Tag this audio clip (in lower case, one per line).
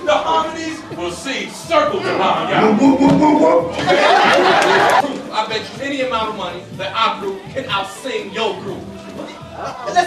music
speech